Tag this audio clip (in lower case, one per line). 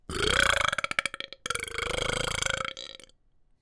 eructation